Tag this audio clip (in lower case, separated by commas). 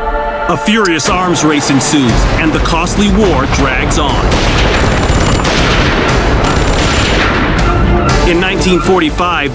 music, fusillade, speech